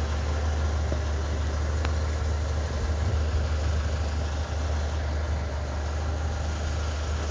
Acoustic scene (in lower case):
residential area